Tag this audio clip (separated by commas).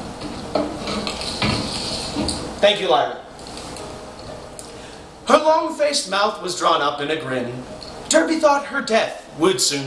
inside a small room, Music, Speech